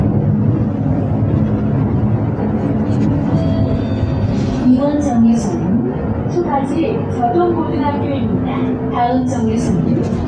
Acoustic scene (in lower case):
bus